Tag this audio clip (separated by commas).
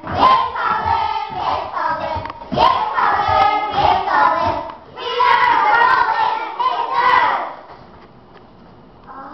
Child singing